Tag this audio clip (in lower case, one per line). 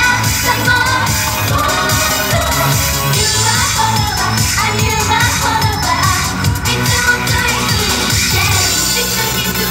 music